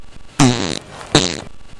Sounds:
Fart

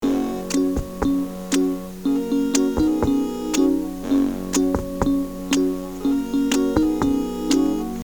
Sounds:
Keyboard (musical), Piano, Musical instrument, Music

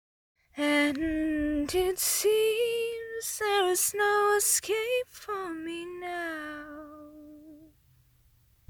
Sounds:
Human voice, Female singing, Singing

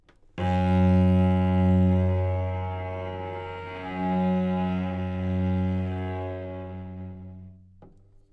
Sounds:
Musical instrument, Bowed string instrument, Music

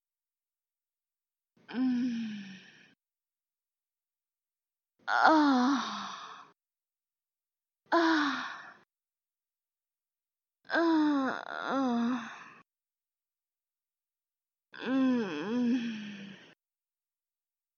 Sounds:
Human voice

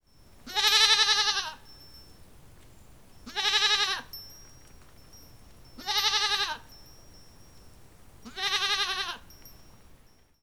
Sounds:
Animal, livestock

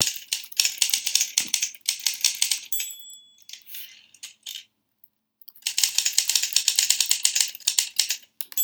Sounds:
Domestic sounds, Typing

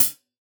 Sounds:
Music, Percussion, Musical instrument, Hi-hat, Cymbal

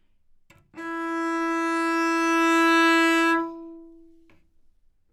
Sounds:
Bowed string instrument, Musical instrument, Music

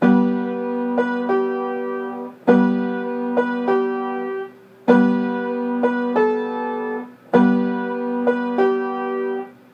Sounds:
Piano, Music, Keyboard (musical), Musical instrument

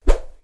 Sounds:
swish

